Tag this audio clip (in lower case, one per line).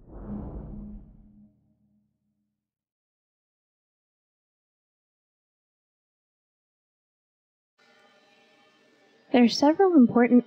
speech